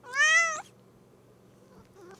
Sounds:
cat, meow, animal, pets

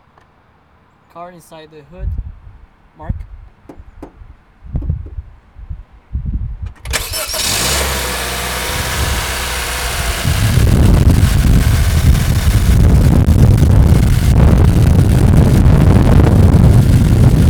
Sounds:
engine starting, engine

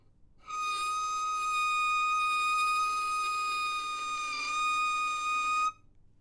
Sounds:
musical instrument, music, bowed string instrument

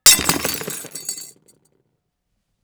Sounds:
glass, shatter

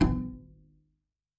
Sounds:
musical instrument, music, bowed string instrument

